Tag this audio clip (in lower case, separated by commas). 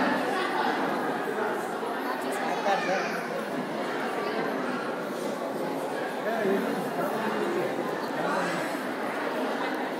speech